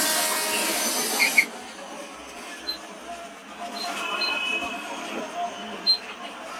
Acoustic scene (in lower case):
bus